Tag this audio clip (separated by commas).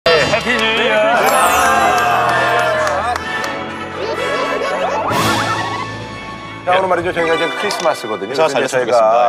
Music, inside a large room or hall, Speech